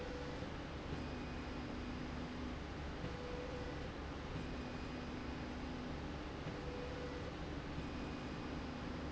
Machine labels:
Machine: slide rail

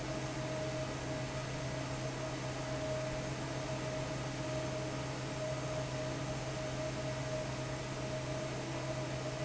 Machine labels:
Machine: fan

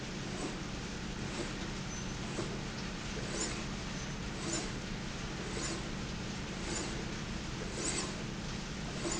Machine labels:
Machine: slide rail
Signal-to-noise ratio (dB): -6 dB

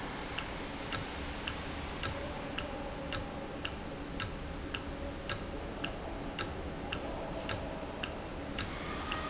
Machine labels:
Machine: valve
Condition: normal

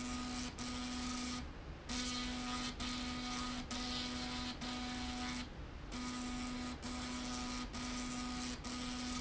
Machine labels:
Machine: slide rail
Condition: abnormal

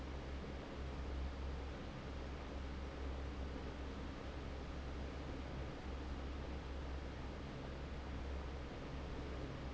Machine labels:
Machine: fan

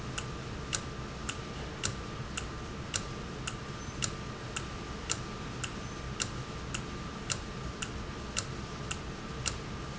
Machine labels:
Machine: valve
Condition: normal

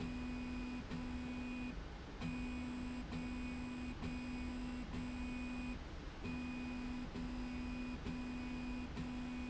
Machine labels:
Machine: slide rail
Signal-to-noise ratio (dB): 6 dB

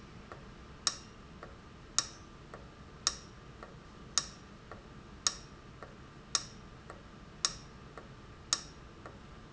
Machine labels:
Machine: valve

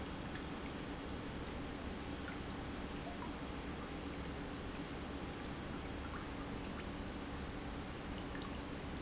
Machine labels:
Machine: pump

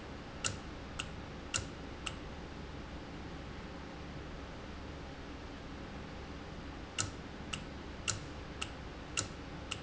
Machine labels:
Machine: valve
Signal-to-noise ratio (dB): 0 dB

